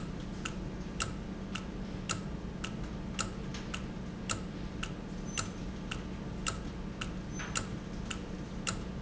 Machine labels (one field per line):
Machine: valve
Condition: normal